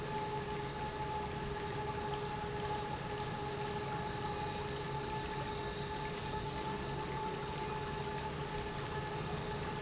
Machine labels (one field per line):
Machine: pump